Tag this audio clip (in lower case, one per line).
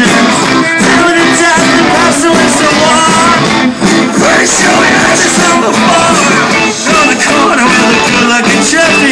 music